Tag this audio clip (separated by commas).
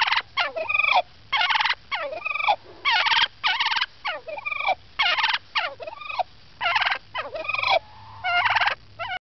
Gobble, Turkey, turkey gobbling, Fowl